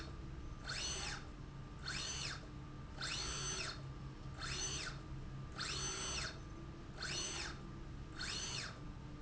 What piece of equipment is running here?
slide rail